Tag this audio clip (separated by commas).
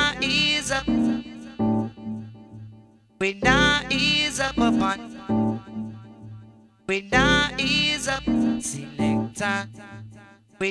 Music